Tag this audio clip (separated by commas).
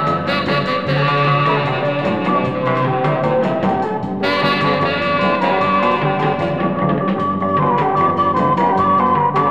Music